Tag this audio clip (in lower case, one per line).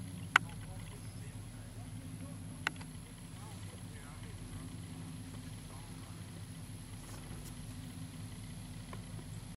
vehicle